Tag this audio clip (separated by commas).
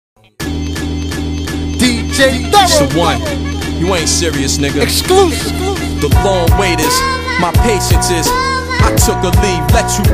Music, man speaking, Speech, Hip hop music, Rapping